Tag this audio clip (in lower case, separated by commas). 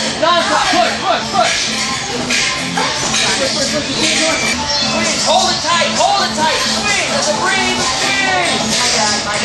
electronic music, techno, speech, music